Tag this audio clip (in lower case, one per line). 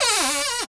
home sounds
cupboard open or close